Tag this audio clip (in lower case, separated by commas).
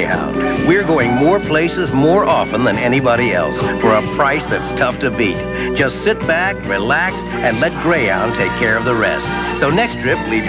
speech, music